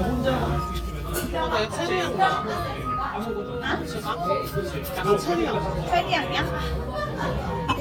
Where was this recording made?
in a crowded indoor space